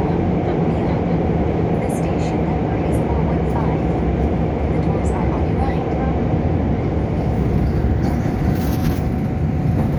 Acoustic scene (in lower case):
subway train